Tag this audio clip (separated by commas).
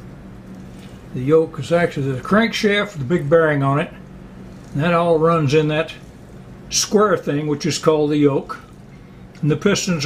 Speech